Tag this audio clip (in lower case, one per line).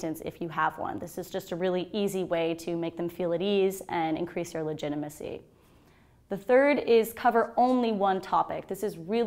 speech